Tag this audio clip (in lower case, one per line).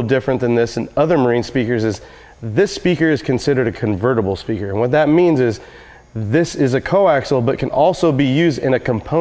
speech